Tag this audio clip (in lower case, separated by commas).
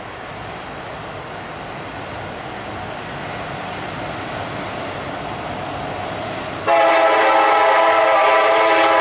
train horning